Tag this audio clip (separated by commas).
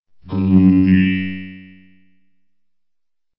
Human voice, Speech, Speech synthesizer